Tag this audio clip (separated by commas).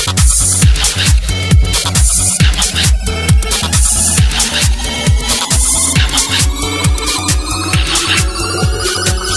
Music, Electronica